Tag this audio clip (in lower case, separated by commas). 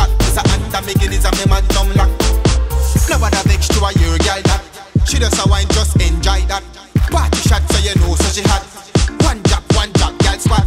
reggae